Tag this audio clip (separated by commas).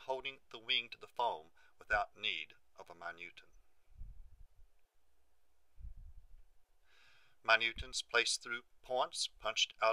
Speech